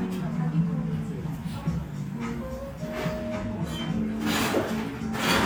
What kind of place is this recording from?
cafe